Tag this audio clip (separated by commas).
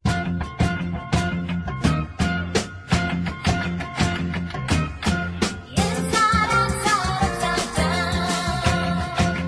Music